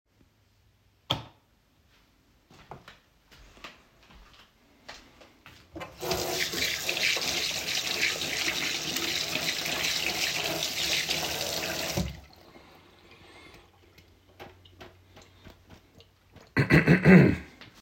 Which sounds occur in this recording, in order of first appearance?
light switch, footsteps, running water